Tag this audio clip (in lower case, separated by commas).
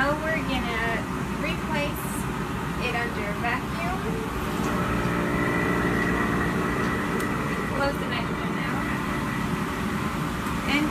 speech